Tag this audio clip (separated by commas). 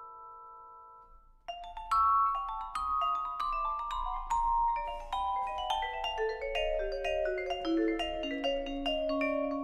playing marimba, Mallet percussion, Glockenspiel, xylophone